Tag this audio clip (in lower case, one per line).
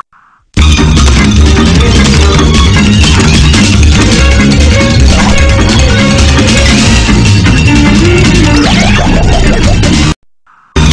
music